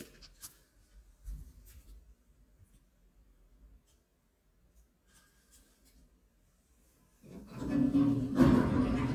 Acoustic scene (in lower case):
elevator